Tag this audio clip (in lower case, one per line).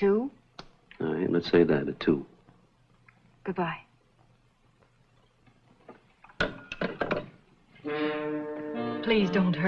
inside a small room
music
speech